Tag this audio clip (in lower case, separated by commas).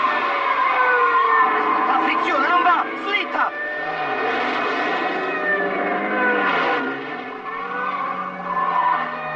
motor vehicle (road), speech, vehicle, car